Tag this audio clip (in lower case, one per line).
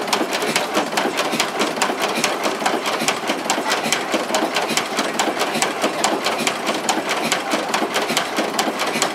heavy engine (low frequency)